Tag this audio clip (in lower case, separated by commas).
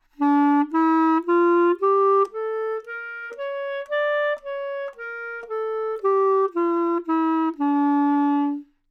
wind instrument, musical instrument, music